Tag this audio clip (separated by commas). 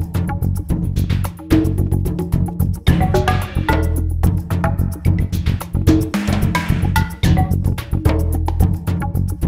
Music